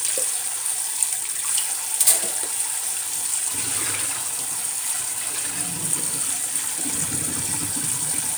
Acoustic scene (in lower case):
kitchen